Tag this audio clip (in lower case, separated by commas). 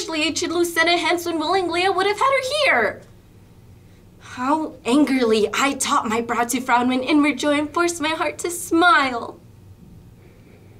narration, speech